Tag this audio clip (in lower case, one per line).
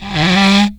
wood